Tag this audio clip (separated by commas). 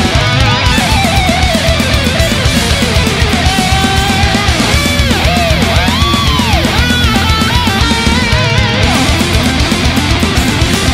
Music, Heavy metal